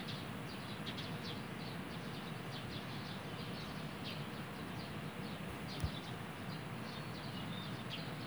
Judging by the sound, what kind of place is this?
park